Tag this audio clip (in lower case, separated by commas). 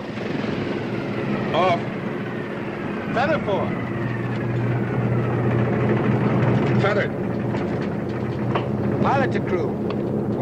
speech